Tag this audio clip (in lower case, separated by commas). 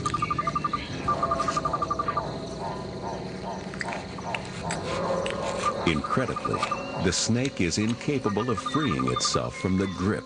speech, animal, outside, rural or natural